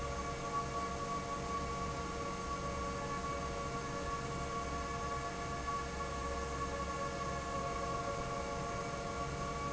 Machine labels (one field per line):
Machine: fan